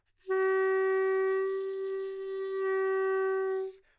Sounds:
Music, Musical instrument, Wind instrument

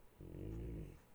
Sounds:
Animal, Dog, Domestic animals

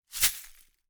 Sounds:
Glass

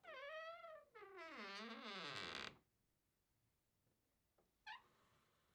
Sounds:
home sounds, Door

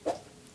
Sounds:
swish

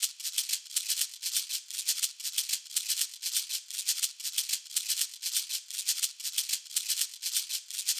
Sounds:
Musical instrument, Rattle (instrument), Music, Percussion

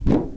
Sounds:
swish

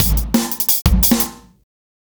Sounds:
Music, Drum kit, Musical instrument, Percussion

